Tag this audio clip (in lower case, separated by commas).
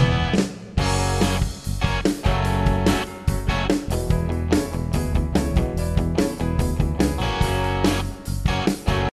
guitar, rock and roll, musical instrument, music